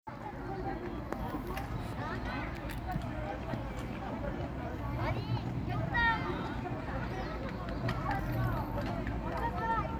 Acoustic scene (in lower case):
park